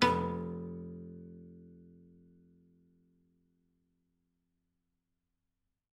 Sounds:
musical instrument, music, piano, keyboard (musical)

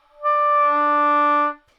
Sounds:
music, woodwind instrument, musical instrument

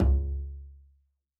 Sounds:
music, bowed string instrument, musical instrument

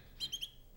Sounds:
animal, wild animals, tweet, bird call, bird

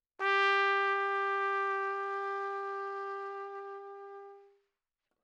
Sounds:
trumpet, musical instrument, brass instrument, music

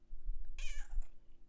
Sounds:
cat, meow, animal, pets

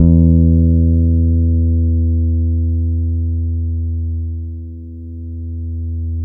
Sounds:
music, guitar, musical instrument, bass guitar, plucked string instrument

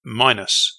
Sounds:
speech, male speech, human voice

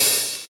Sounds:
percussion, hi-hat, musical instrument, music, cymbal

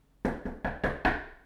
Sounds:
knock, door, domestic sounds

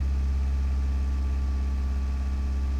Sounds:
engine

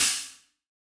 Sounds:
musical instrument, percussion, hi-hat, cymbal, music

